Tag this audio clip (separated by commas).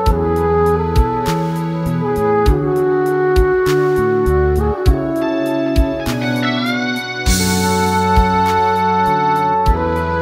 playing french horn